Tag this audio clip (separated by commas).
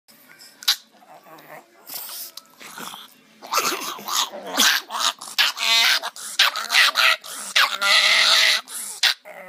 Dog, pets, Animal